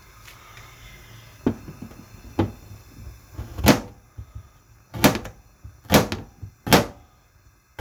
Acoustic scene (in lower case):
kitchen